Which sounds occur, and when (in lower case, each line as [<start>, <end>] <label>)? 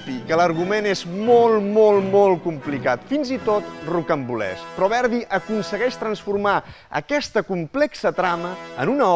[0.01, 9.15] music
[0.05, 4.54] man speaking
[4.74, 6.69] man speaking
[6.91, 8.56] man speaking
[8.71, 9.15] man speaking